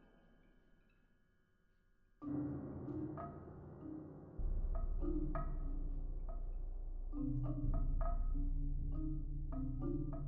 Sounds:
Percussion

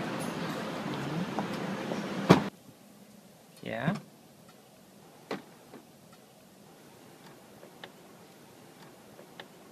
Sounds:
opening or closing car doors

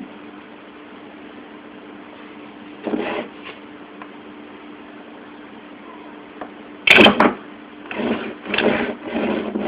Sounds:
inside a small room

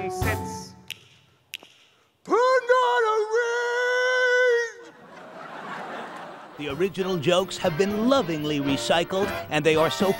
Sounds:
Speech, Music

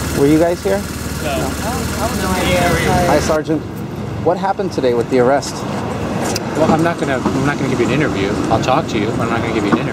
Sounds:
outside, urban or man-made, Speech

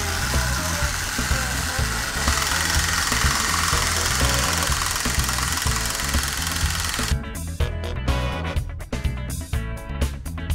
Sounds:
Music

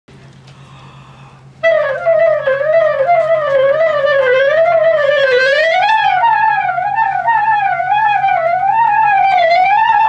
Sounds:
Music, Wind instrument, Musical instrument, Clarinet

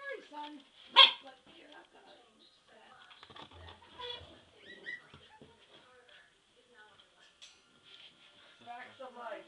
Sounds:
Animal, Speech, pets, Whimper (dog), Dog, Bow-wow

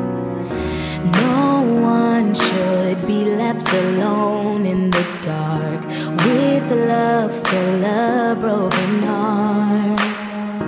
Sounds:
Music

